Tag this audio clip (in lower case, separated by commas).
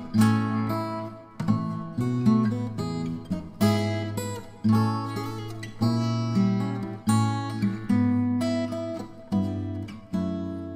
acoustic guitar, playing acoustic guitar, musical instrument, guitar, music, plucked string instrument